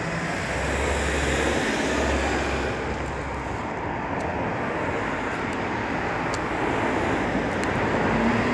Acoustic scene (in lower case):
street